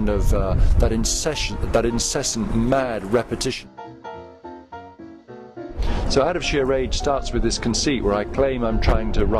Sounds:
man speaking, Speech, Music

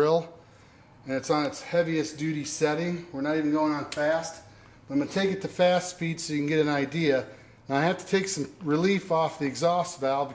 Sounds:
Speech

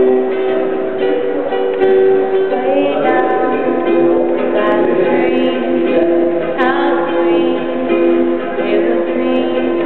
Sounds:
Music, Speech

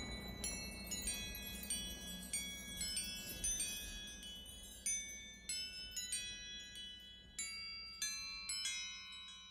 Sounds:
Glockenspiel, Chime, xylophone, Mallet percussion

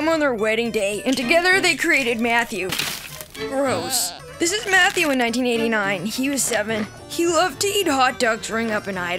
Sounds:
Music, Speech

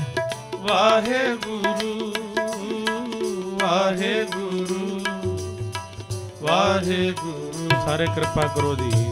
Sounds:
Music

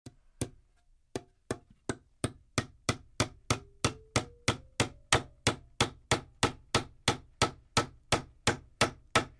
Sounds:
hammering nails

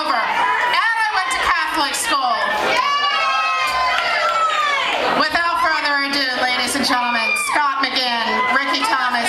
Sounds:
Speech

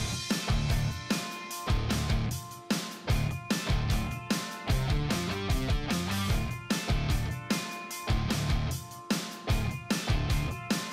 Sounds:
Music

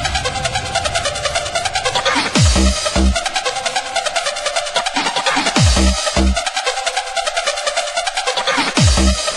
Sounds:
Music

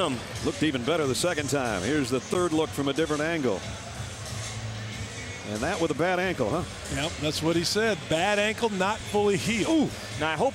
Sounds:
Music, Speech

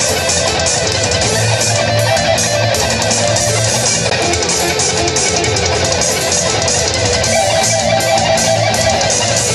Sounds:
Sampler, Music

